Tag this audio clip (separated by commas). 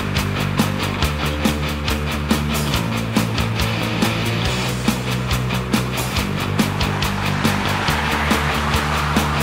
Vehicle, Truck, Music, Car